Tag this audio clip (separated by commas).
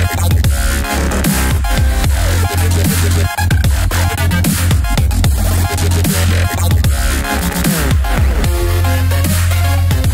rapping